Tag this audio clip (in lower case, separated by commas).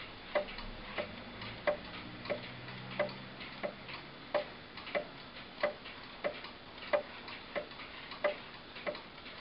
tick, tick-tock